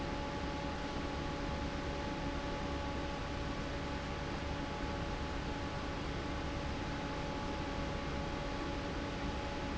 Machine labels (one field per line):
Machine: fan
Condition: normal